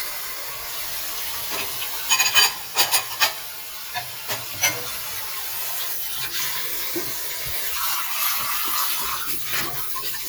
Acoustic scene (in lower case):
kitchen